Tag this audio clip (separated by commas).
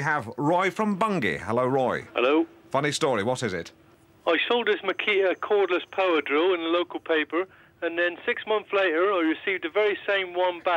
Speech